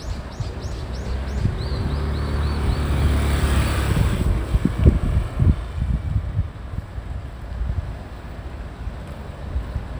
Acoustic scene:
street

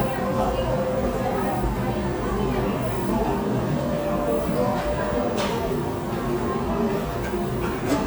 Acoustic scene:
cafe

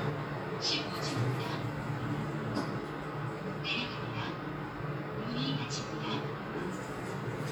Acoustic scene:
elevator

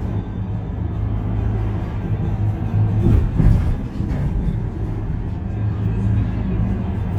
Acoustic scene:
bus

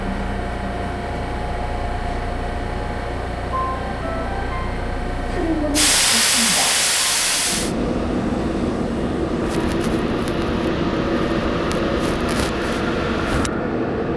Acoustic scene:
subway train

